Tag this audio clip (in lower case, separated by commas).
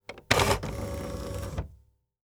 domestic sounds, typewriter, typing